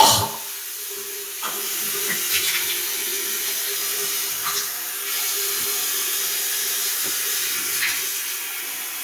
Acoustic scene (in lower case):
restroom